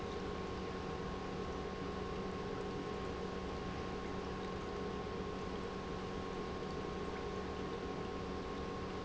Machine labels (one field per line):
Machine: pump